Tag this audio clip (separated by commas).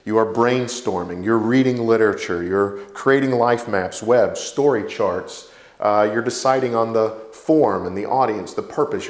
Speech